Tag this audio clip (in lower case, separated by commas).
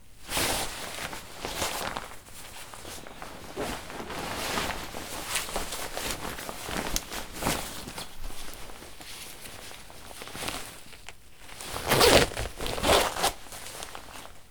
domestic sounds, zipper (clothing)